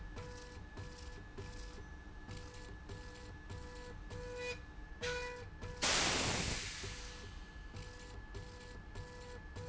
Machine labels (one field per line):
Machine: slide rail